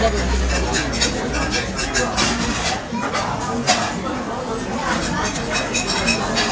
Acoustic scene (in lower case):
restaurant